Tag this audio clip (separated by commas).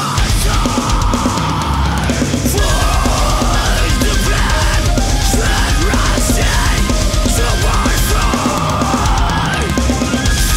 Music